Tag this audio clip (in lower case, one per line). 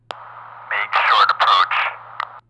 speech
male speech
human voice